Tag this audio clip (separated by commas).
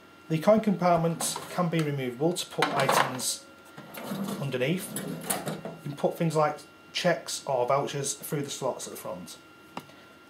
Speech